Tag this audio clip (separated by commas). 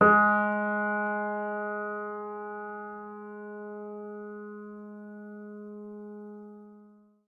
Music, Musical instrument, Keyboard (musical), Piano